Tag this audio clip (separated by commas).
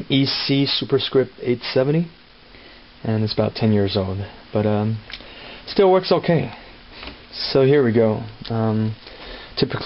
Speech